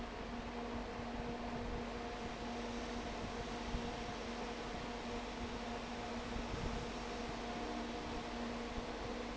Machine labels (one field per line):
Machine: fan